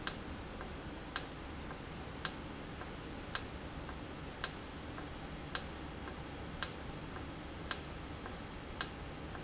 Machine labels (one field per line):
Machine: valve